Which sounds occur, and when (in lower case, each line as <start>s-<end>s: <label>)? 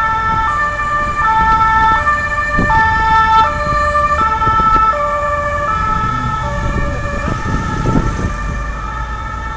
0.0s-9.5s: ambulance (siren)
0.0s-9.5s: wind
1.3s-4.9s: wind noise (microphone)
7.1s-8.3s: wind noise (microphone)